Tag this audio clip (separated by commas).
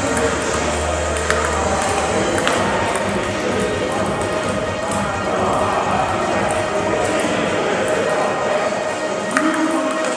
Music